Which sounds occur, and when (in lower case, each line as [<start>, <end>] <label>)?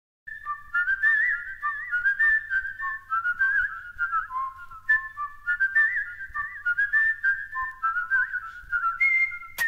[0.23, 9.65] background noise
[0.23, 9.65] whistling
[7.66, 7.77] tick